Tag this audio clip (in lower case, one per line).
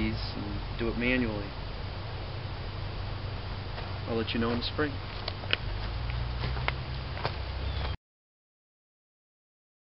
speech